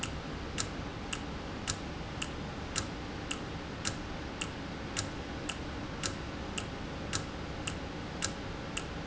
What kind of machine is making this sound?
valve